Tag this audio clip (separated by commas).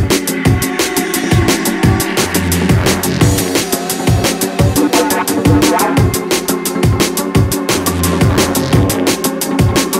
Music